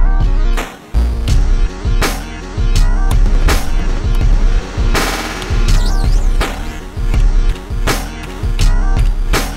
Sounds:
Sampler

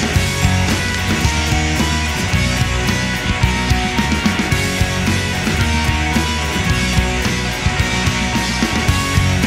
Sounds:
Music

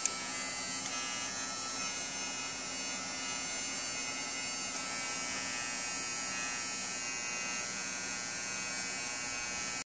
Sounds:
Vibration

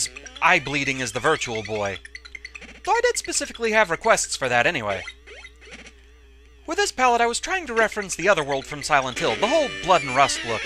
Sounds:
Speech

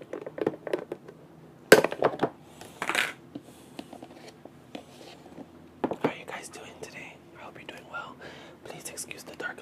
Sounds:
Speech

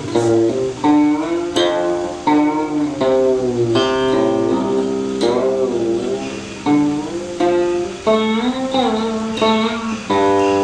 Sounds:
Music, Folk music

